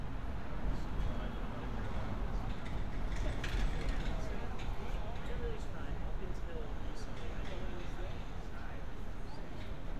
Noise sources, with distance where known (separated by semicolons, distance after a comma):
person or small group talking, far